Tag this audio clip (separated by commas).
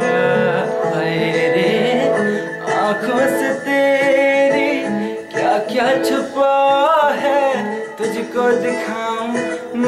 Music, inside a small room